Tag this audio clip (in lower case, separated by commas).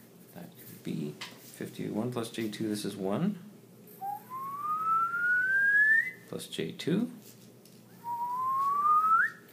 speech, inside a small room